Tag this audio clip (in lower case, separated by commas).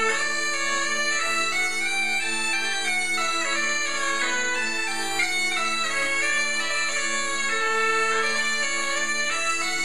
woodwind instrument, bagpipes